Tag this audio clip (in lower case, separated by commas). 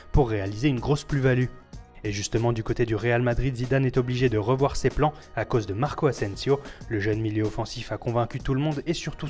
music, speech